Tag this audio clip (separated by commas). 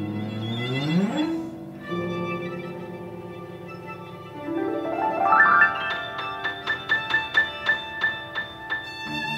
Music, Violin